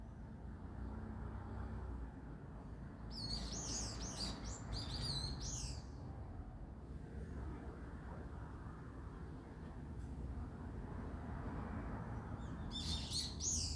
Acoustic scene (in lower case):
residential area